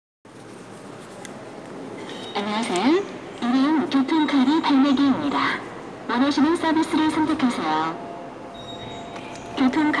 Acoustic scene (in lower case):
subway station